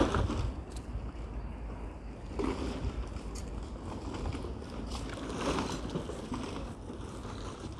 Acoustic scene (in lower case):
residential area